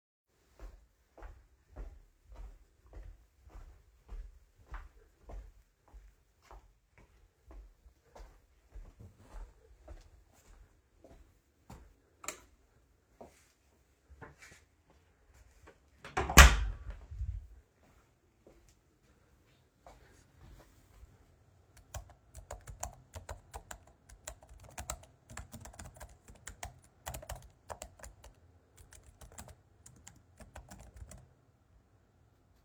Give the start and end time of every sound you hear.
[0.17, 12.10] footsteps
[12.07, 12.52] light switch
[13.05, 14.36] footsteps
[15.97, 17.25] door
[17.81, 21.25] footsteps
[21.80, 31.46] keyboard typing

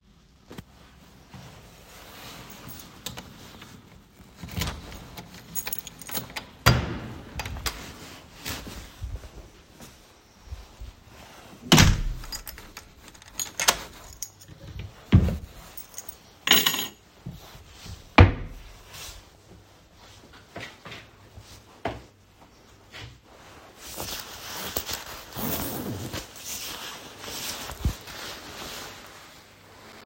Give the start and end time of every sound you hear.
[2.62, 2.89] keys
[4.32, 9.53] door
[5.51, 6.33] keys
[8.36, 11.33] footsteps
[11.39, 18.92] keys
[11.64, 14.02] door
[15.05, 15.53] wardrobe or drawer
[17.85, 18.78] wardrobe or drawer

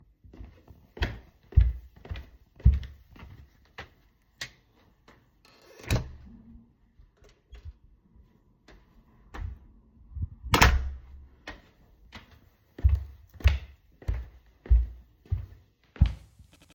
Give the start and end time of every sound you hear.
[0.32, 3.88] footsteps
[4.33, 4.58] light switch
[5.43, 6.22] door
[7.60, 9.65] footsteps
[10.13, 11.13] door
[11.44, 16.66] footsteps

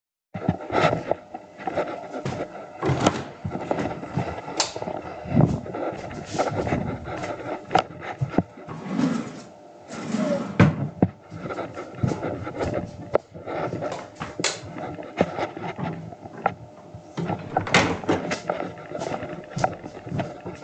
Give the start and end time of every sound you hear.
[0.00, 20.64] footsteps
[2.14, 3.37] door
[4.33, 4.72] light switch
[8.31, 11.12] wardrobe or drawer
[13.39, 14.70] light switch
[17.15, 18.31] door

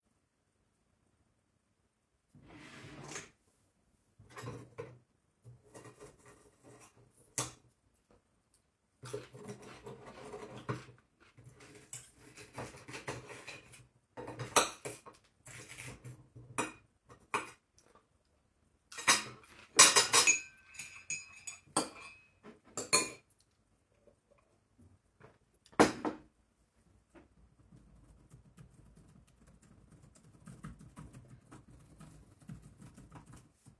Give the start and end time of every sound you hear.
[2.21, 3.45] wardrobe or drawer
[4.27, 23.32] cutlery and dishes
[25.75, 26.33] cutlery and dishes
[30.36, 33.79] keyboard typing

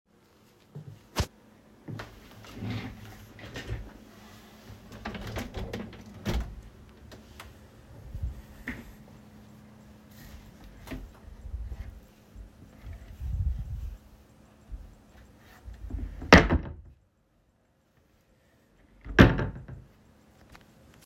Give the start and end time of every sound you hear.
[4.91, 6.70] window
[15.84, 16.86] wardrobe or drawer
[19.12, 19.63] wardrobe or drawer

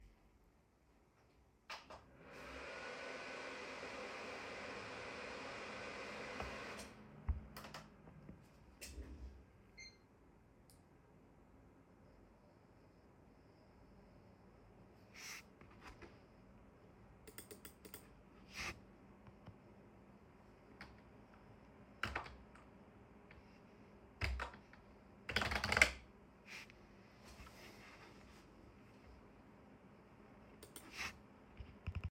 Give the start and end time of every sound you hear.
[20.67, 22.42] keyboard typing
[24.06, 26.06] keyboard typing

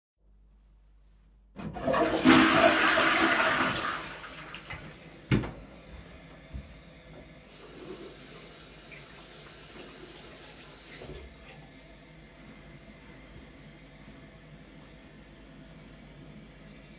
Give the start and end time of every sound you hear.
[1.57, 5.20] toilet flushing
[5.78, 7.08] footsteps
[7.35, 11.50] running water

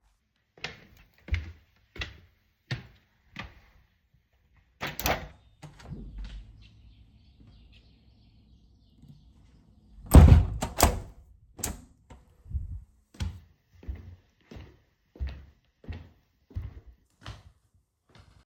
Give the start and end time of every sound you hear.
[0.53, 3.91] footsteps
[4.79, 6.42] window
[10.04, 12.23] window
[12.51, 18.09] footsteps

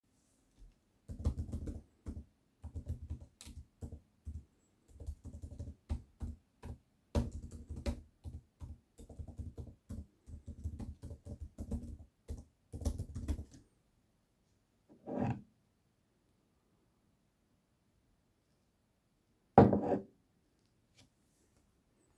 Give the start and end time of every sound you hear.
[1.03, 13.57] keyboard typing
[14.98, 15.47] cutlery and dishes
[19.46, 20.14] cutlery and dishes

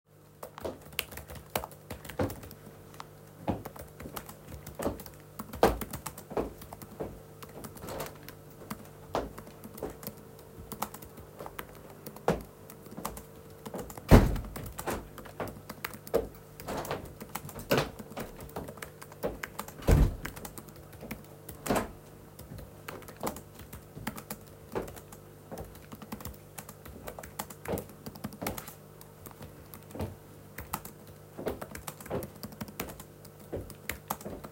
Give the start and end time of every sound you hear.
[0.03, 34.48] keyboard typing
[0.40, 7.92] footsteps
[9.07, 13.42] footsteps
[13.93, 15.76] window
[16.59, 18.44] window
[19.79, 20.36] window
[21.55, 22.04] window
[22.69, 34.52] footsteps

